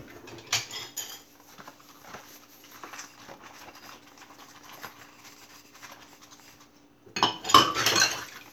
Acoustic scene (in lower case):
kitchen